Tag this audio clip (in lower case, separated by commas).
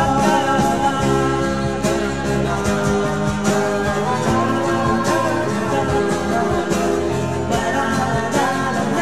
country, music, singing